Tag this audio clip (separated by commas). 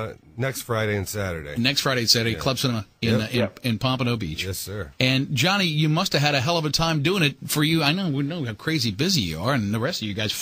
Speech